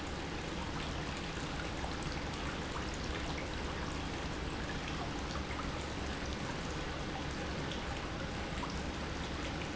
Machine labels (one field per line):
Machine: pump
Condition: normal